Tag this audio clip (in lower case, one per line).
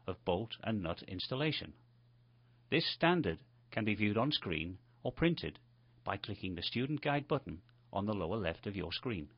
speech